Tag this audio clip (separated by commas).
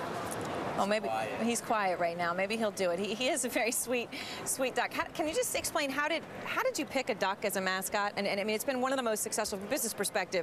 Speech